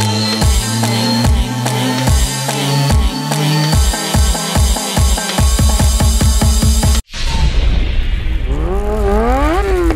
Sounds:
music

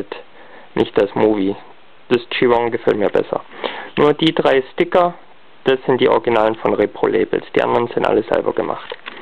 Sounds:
speech

